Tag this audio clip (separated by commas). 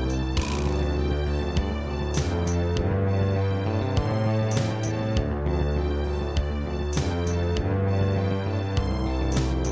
Music